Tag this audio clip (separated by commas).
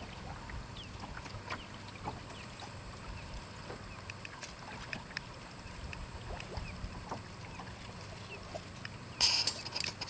Sailboat, Boat